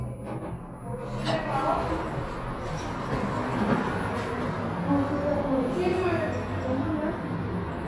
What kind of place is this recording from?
elevator